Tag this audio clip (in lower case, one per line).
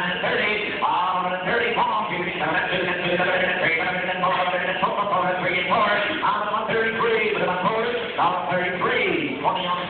speech